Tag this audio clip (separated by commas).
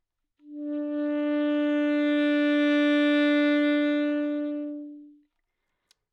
Wind instrument, Musical instrument, Music